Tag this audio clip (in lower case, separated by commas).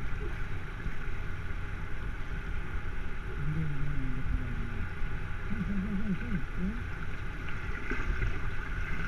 gurgling